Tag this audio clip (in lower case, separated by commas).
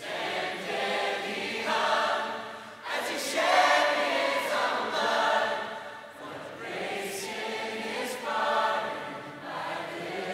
choir